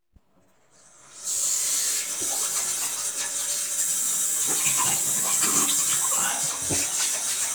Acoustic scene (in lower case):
restroom